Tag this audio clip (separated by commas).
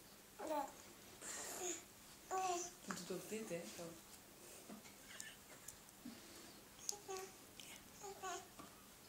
baby babbling